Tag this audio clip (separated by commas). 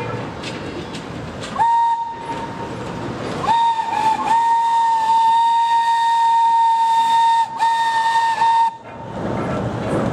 Steam whistle